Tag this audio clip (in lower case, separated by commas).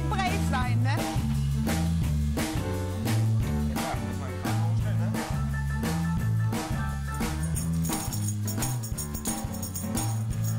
music, speech